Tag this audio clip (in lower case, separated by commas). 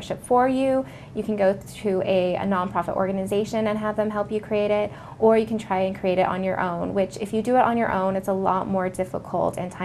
inside a small room, speech